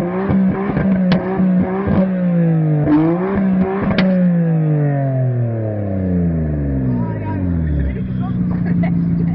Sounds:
speech

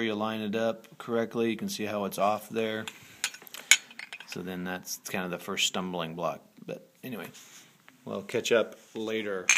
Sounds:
speech

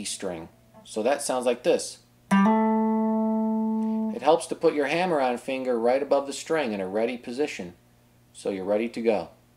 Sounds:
guitar, musical instrument, speech, plucked string instrument, strum, music

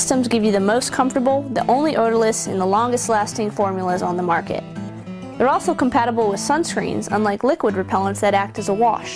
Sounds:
speech, music

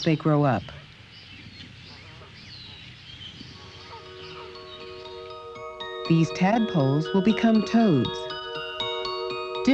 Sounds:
animal

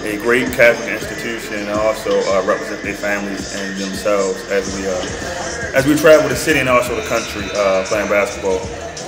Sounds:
music, speech

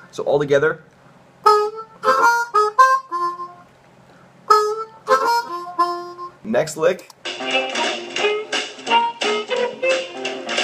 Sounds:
music, speech, harmonica

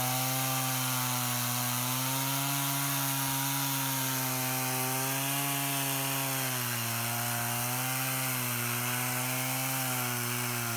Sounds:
chainsawing trees

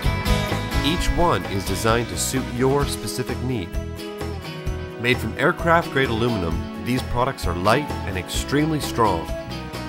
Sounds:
music, speech

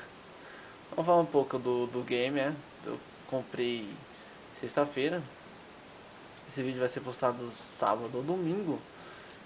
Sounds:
speech

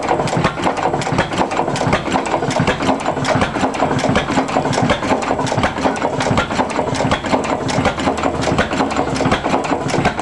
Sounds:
engine

